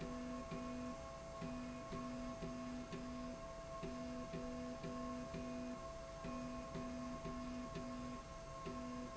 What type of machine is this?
slide rail